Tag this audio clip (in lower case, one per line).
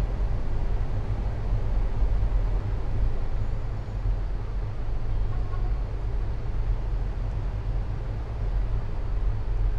car
vehicle